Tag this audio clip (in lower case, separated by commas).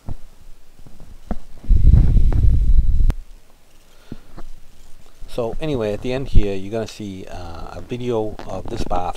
speech